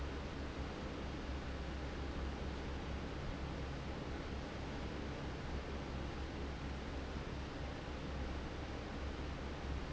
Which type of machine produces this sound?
fan